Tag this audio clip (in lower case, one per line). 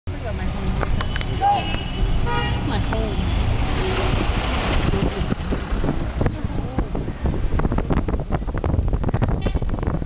vehicle
speech